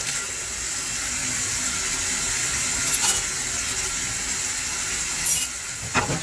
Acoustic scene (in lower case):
kitchen